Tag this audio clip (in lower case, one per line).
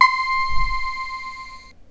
keyboard (musical)
musical instrument
music